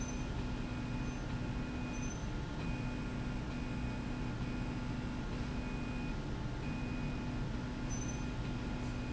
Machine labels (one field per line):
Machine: slide rail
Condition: normal